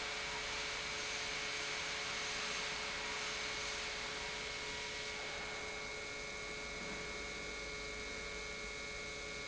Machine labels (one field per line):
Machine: pump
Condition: normal